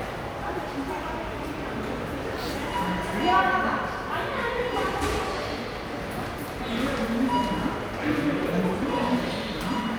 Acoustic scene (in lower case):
subway station